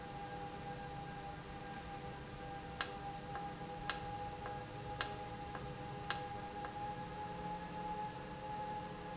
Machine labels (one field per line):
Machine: valve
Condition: normal